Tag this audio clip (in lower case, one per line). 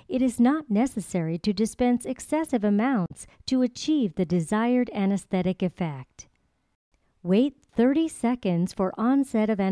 speech